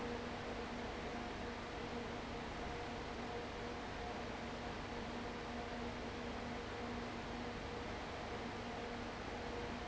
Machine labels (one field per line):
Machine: fan